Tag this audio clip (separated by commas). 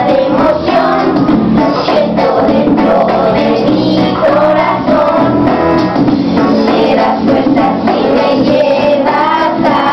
Child singing, Music